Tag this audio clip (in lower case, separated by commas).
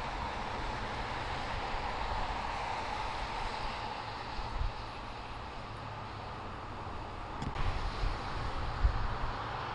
vehicle